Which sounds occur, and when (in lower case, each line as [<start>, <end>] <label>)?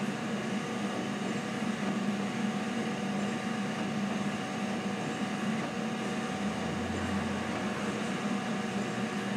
[0.01, 9.35] printer